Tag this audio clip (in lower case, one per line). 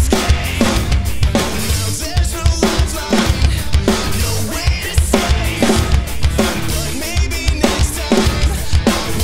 music